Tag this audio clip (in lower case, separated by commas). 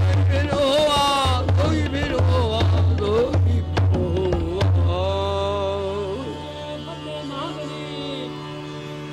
music, carnatic music